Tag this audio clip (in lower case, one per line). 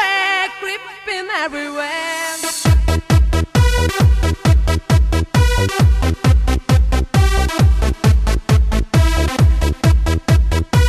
music